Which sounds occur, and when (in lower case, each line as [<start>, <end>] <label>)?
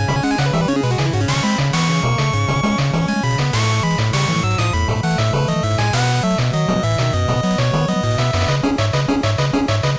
[0.00, 9.95] music
[0.00, 9.95] video game sound